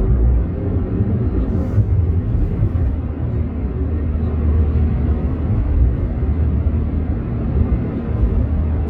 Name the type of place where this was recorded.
car